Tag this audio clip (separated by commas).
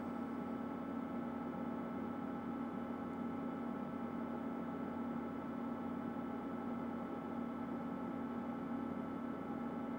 Engine